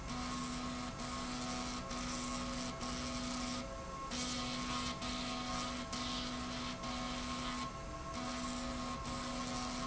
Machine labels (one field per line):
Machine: slide rail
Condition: abnormal